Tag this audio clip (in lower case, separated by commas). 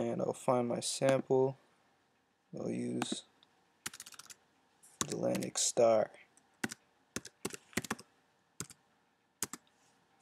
speech